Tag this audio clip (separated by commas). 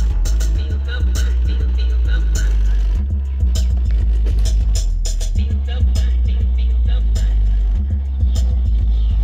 Music